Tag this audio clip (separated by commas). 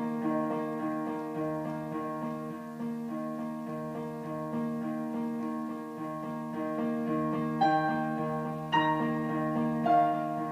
Music